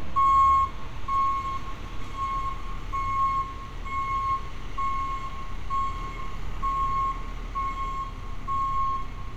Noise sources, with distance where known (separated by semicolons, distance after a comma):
reverse beeper, near